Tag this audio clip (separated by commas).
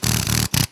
Tools, Power tool, Drill